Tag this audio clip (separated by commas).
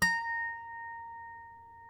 Harp, Musical instrument, Music